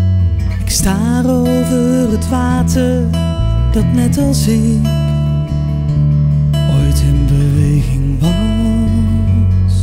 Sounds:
music

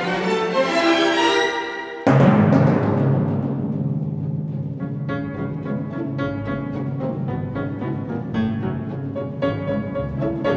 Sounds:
music
percussion

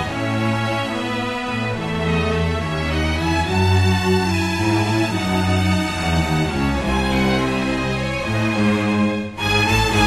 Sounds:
theme music
music

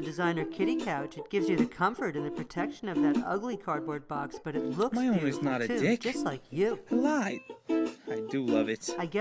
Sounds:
music
speech

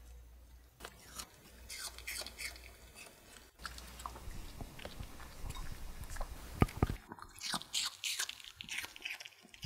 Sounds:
people eating apple

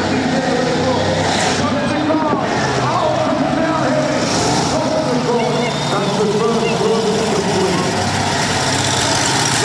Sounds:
truck
speech
vehicle

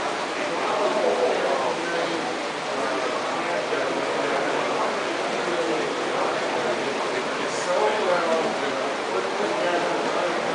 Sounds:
speech

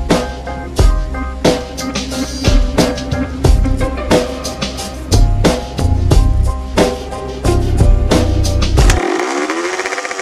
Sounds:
vehicle
motorcycle

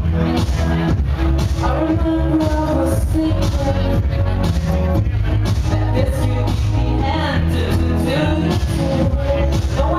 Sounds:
crowd
speech
inside a large room or hall
music

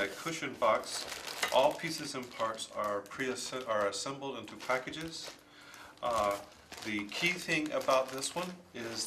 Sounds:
speech

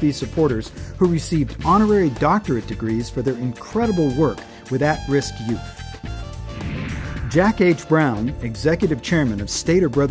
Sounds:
music
speech

